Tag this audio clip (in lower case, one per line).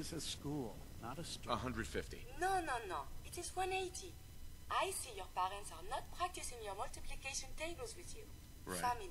speech
inside a small room